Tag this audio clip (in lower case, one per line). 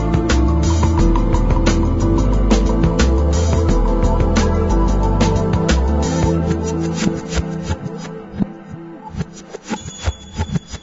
music